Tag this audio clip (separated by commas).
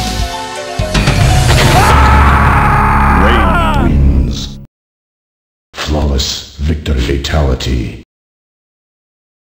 Speech